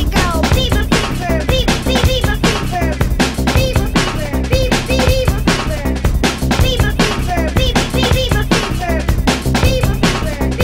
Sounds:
music

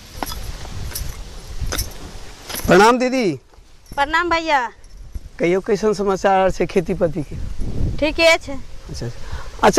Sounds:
outside, rural or natural
speech

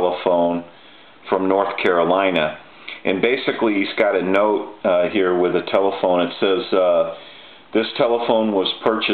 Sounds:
speech

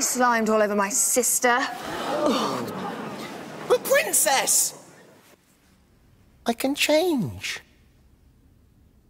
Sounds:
speech
music

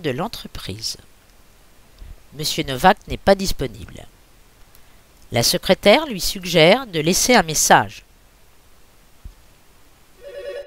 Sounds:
speech

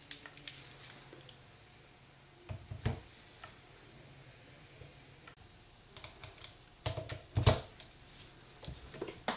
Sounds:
silence
inside a small room

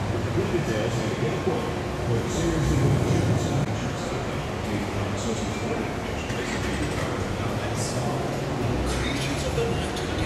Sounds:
speech

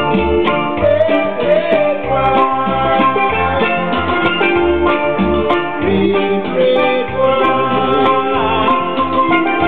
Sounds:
steelpan
soundtrack music
music

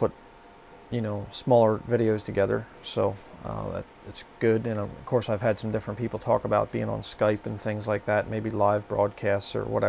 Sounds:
speech

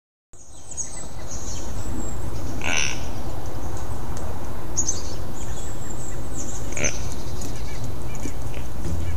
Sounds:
music

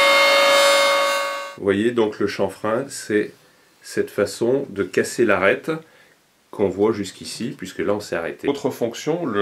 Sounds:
planing timber

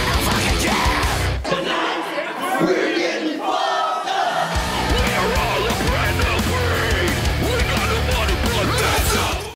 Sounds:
music
speech

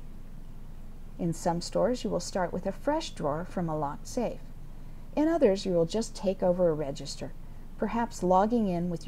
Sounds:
speech

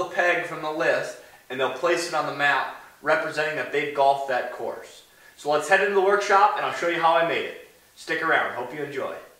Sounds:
speech

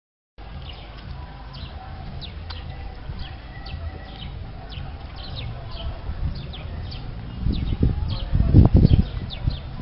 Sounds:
bird

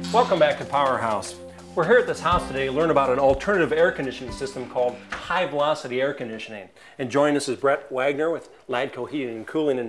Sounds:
speech
music

